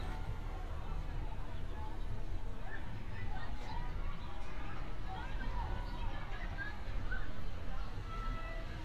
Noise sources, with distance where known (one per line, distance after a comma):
person or small group talking